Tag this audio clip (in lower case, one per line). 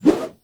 swoosh